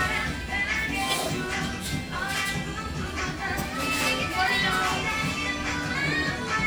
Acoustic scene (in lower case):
restaurant